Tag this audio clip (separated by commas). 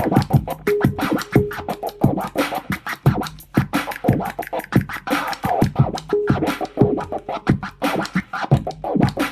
Music, Scratching (performance technique)